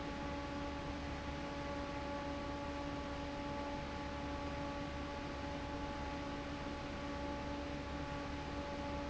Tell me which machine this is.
fan